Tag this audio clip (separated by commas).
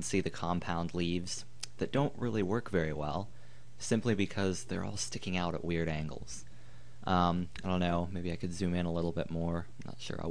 Speech